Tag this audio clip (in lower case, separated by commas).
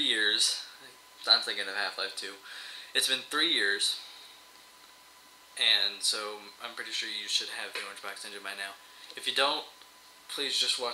speech